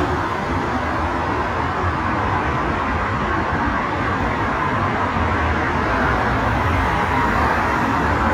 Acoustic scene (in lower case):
street